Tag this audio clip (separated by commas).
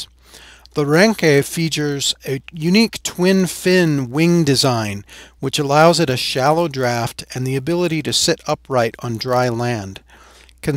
Speech